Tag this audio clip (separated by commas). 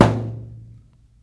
thud